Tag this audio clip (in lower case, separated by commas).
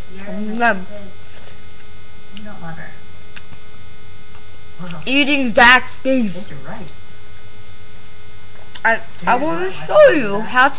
speech